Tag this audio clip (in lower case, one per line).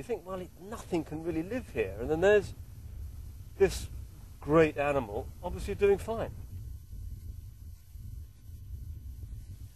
outside, rural or natural
speech